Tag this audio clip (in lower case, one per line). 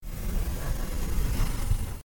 sliding door
door
domestic sounds